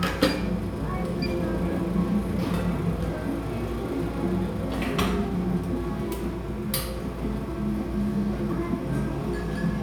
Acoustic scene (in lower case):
cafe